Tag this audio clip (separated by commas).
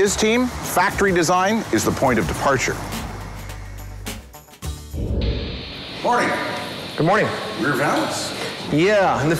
Speech, Music